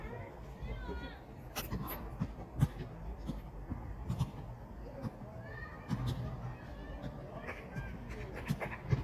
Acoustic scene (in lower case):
park